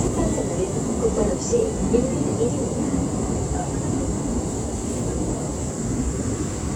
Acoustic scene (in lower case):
subway train